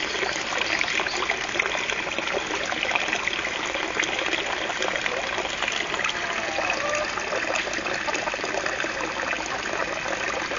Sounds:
Water

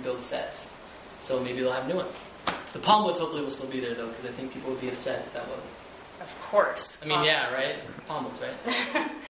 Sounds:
Speech

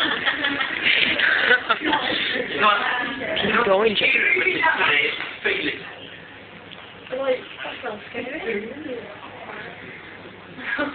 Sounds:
Speech

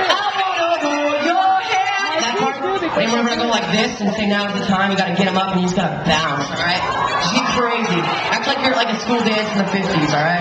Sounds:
Speech

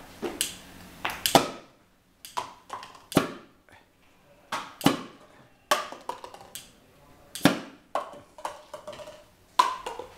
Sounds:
Speech

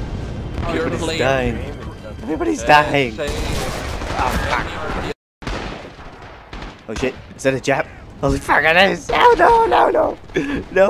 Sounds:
Machine gun, gunfire

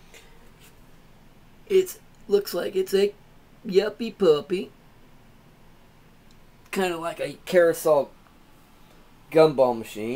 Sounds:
Speech

